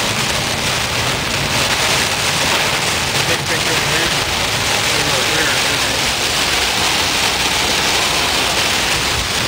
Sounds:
rain, vehicle

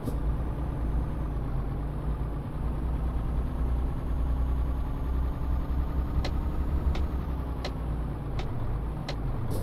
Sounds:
vehicle, truck

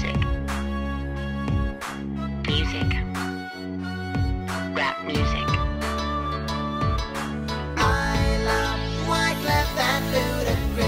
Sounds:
music

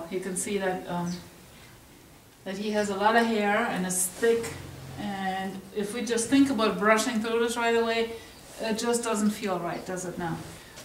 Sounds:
speech

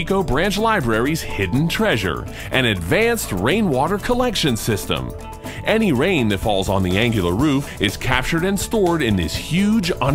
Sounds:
music, speech

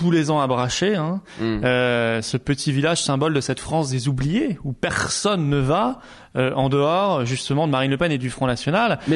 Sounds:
speech

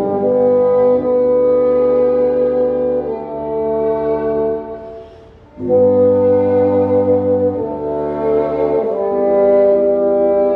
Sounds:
playing bassoon

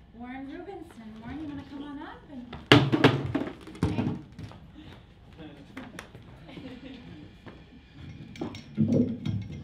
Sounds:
woman speaking, narration, male speech, speech

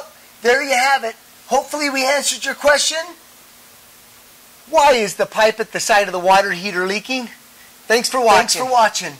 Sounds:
speech

